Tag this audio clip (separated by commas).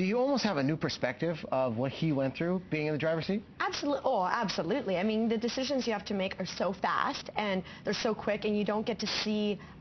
Speech